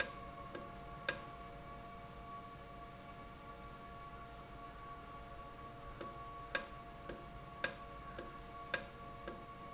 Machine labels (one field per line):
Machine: valve